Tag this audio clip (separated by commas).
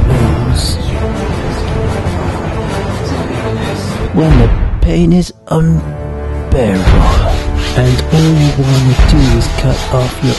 inside a small room, Speech, Music